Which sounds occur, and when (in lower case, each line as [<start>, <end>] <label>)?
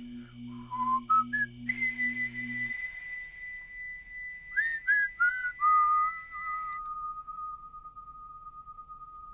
[0.00, 9.33] background noise
[0.10, 0.36] breathing
[0.48, 1.49] whistling
[1.68, 9.33] whistling
[2.62, 2.83] breathing
[2.63, 2.82] clicking
[6.69, 6.92] clicking